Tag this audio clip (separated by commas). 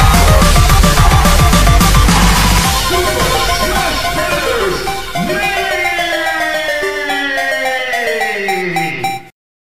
Music